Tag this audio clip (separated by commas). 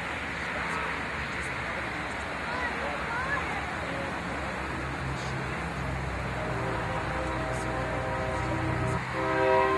Speech